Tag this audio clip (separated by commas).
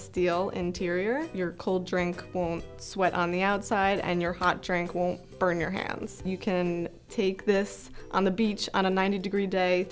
Speech, Music